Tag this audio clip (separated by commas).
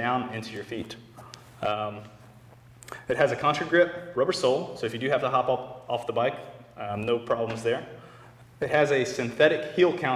Speech